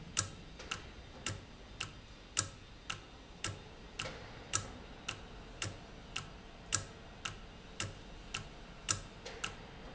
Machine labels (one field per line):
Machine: valve